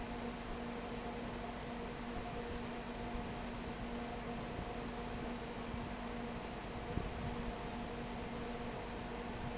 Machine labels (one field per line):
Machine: fan